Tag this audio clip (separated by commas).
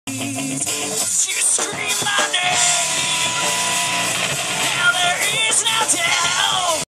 Music, Plucked string instrument, Acoustic guitar, Musical instrument, Strum, Guitar